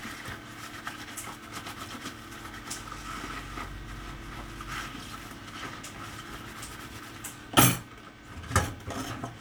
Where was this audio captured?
in a kitchen